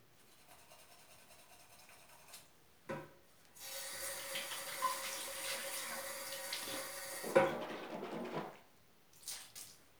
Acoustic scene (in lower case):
restroom